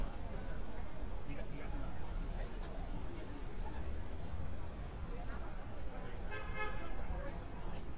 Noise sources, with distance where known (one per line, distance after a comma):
car horn, near
person or small group talking